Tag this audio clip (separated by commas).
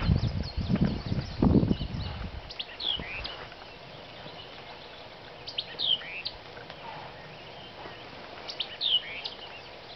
bird song